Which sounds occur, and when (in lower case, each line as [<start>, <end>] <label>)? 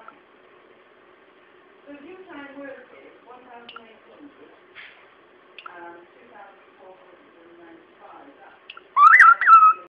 [0.00, 9.85] mechanisms
[0.07, 0.10] tick
[1.83, 8.65] conversation
[1.84, 2.80] woman speaking
[2.84, 3.19] male speech
[3.29, 3.96] woman speaking
[3.67, 3.75] tick
[3.98, 4.56] male speech
[4.75, 5.01] breathing
[5.57, 5.64] tick
[5.62, 7.81] woman speaking
[7.98, 8.64] woman speaking
[8.68, 8.76] tick
[8.95, 9.84] bird vocalization